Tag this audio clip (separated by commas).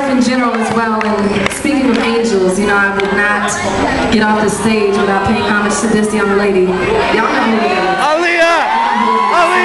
Speech